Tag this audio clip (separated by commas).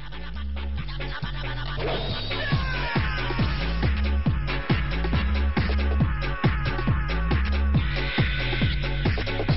Music